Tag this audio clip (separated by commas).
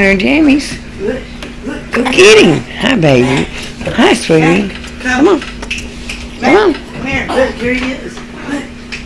Speech